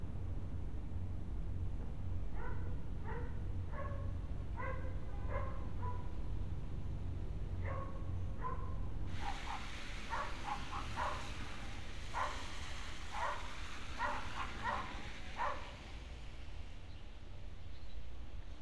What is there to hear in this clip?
dog barking or whining